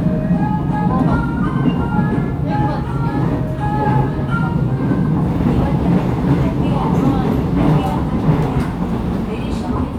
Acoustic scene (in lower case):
subway train